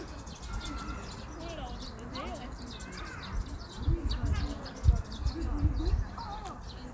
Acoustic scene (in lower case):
park